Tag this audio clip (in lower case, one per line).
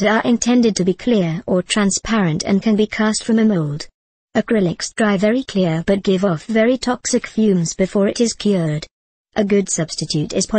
speech